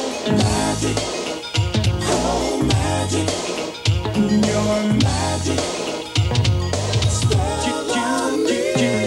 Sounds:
music

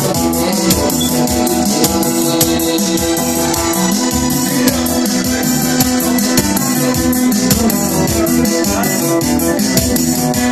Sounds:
speech, music

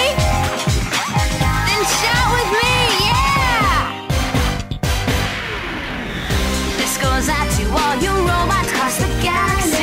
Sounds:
background music, video game music, music, speech

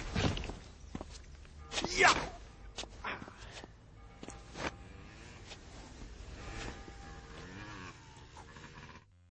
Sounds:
speech

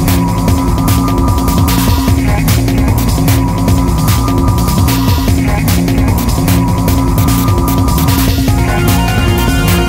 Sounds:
music

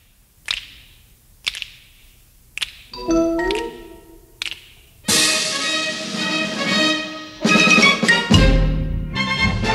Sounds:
music, percussion, marimba

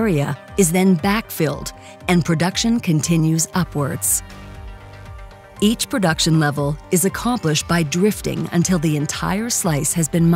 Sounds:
speech, music

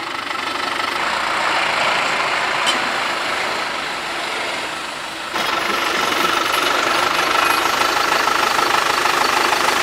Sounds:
outside, rural or natural, reversing beeps, truck

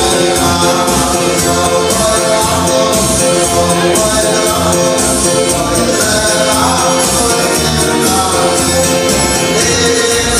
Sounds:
music, male singing

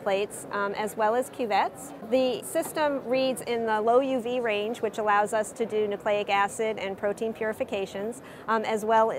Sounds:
speech

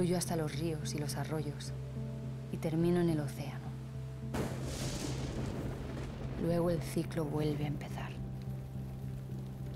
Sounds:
speech, waterfall

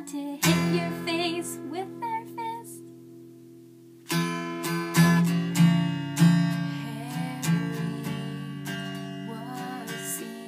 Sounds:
music, plucked string instrument, musical instrument, guitar

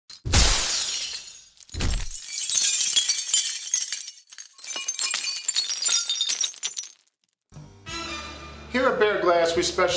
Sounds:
speech, glass, music

